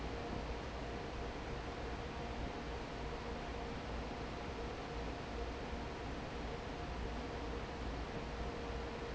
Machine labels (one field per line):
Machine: fan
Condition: normal